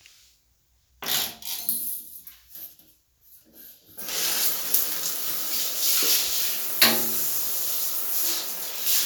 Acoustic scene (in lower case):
restroom